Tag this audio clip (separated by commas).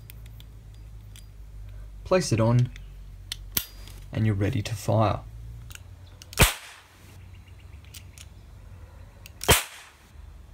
cap gun shooting